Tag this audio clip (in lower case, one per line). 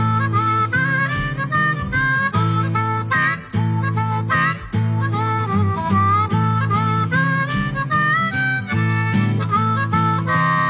music